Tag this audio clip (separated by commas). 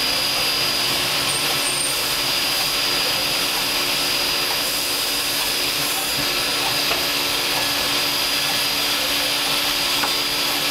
inside a small room, Vacuum cleaner